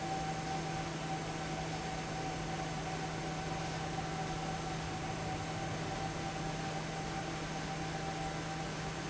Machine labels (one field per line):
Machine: fan